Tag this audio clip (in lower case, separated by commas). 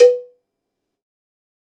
cowbell, bell